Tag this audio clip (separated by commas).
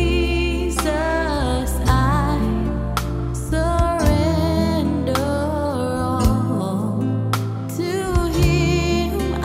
Jazz, Music, Rhythm and blues